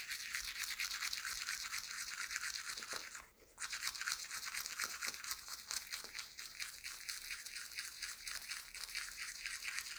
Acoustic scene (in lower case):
restroom